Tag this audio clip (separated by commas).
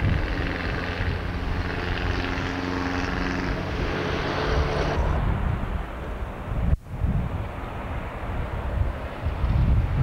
outside, urban or man-made